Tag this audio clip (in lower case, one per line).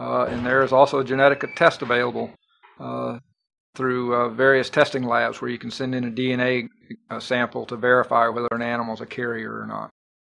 speech